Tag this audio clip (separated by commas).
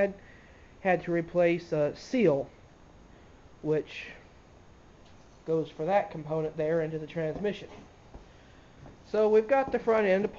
Speech